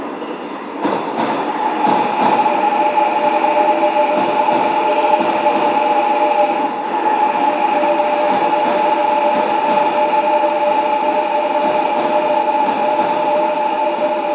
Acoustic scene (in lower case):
subway station